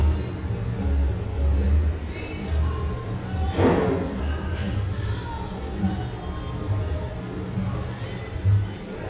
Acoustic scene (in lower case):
cafe